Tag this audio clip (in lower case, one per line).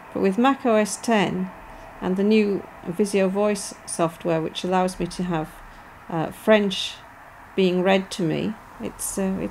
speech